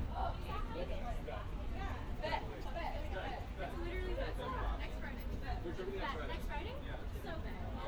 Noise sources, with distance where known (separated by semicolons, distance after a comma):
person or small group talking, near